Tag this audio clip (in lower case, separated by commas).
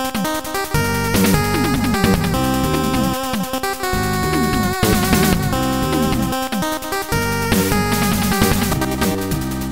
soundtrack music, disco, music